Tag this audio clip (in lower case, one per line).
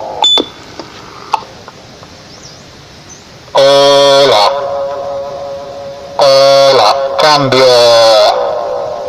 speech
echo